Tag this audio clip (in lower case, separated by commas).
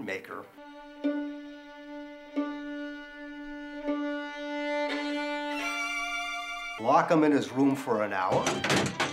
speech, musical instrument, fiddle, music